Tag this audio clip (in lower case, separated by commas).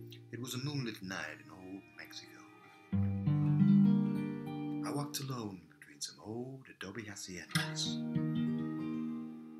acoustic guitar, strum, music, speech, guitar, plucked string instrument, musical instrument